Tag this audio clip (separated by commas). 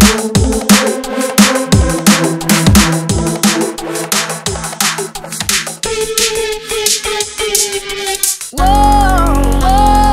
Music, Sound effect